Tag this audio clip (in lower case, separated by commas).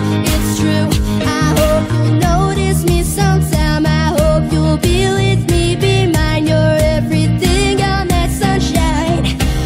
music